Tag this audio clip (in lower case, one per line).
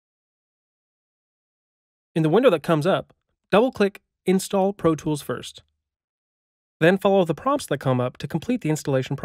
speech